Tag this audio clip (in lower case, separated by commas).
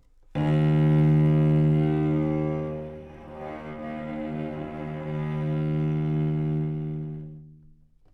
music, bowed string instrument, musical instrument